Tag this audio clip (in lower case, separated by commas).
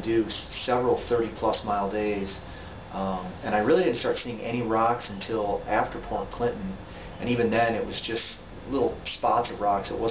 speech